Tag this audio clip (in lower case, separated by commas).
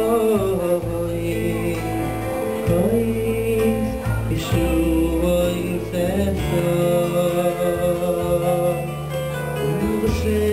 male singing, music